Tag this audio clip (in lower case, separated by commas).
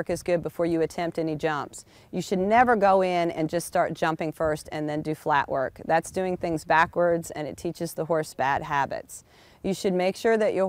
speech